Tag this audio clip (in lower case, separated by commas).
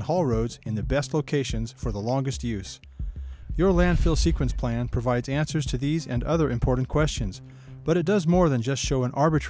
music, speech